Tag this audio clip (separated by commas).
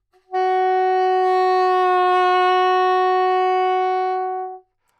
Musical instrument, Music, woodwind instrument